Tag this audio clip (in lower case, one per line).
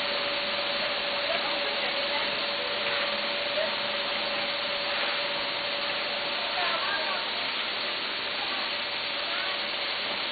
speech